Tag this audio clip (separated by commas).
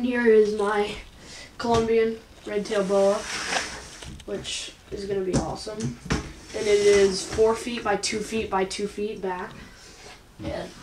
inside a small room, Speech